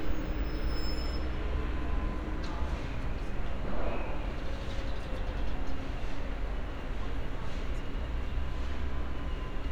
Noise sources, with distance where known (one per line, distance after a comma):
engine of unclear size